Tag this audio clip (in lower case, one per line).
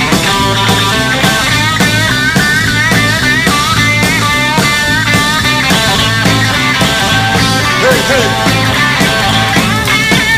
music